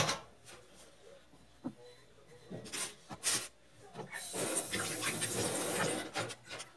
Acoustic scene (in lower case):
kitchen